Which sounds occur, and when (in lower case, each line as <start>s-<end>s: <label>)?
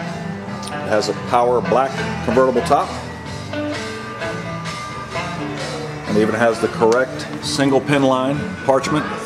0.0s-9.2s: music
0.6s-0.7s: tick
0.7s-1.1s: man speaking
1.2s-1.9s: man speaking
2.2s-2.8s: man speaking
6.0s-7.0s: man speaking
6.9s-7.0s: tick
7.1s-7.2s: tick
7.4s-8.4s: man speaking
8.6s-9.1s: man speaking